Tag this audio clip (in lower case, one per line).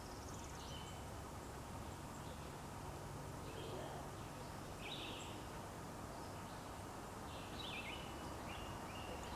turkey gobbling